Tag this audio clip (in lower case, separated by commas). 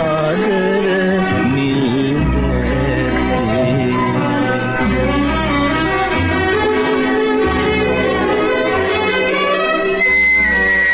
music